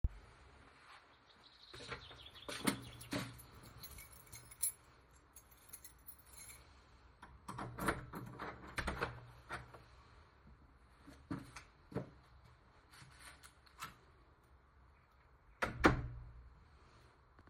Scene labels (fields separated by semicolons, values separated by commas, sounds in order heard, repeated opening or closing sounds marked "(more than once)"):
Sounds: footsteps, keys, door (more than once)